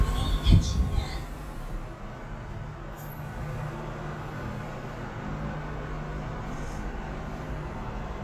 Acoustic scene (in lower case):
elevator